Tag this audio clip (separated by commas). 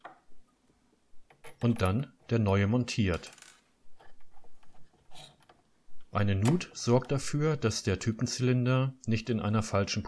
typing on typewriter